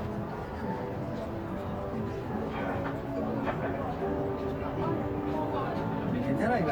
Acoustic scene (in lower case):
crowded indoor space